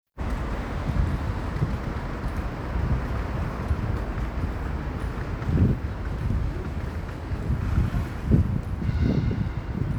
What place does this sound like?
street